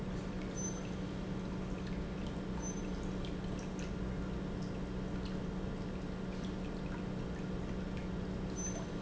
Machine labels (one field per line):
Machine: pump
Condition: normal